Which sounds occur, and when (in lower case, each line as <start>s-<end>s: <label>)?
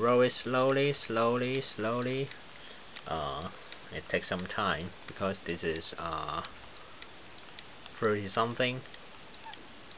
0.0s-2.2s: male speech
0.0s-9.9s: mechanisms
2.5s-2.9s: breathing
3.0s-3.5s: male speech
3.9s-4.9s: male speech
5.2s-6.5s: male speech
6.7s-7.1s: breathing
8.0s-8.8s: male speech
9.4s-9.6s: squeal